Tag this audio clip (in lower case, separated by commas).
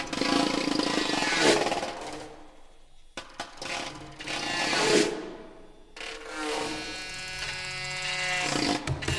music, percussion